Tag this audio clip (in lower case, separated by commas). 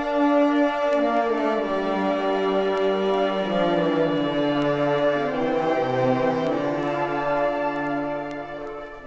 classical music, orchestra, music